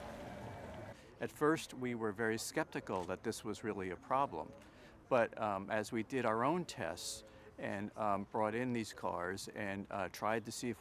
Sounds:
Speech

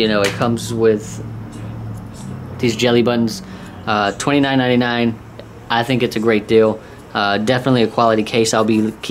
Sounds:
Speech, inside a small room

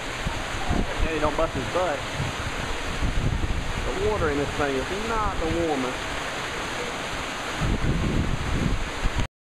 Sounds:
Speech

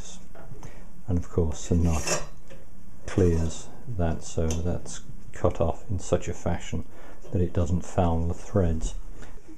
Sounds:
Speech

